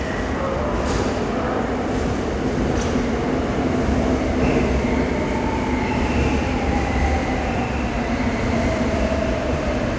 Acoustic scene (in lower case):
subway station